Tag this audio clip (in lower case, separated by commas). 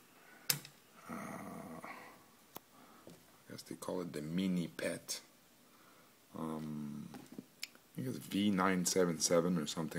inside a small room, speech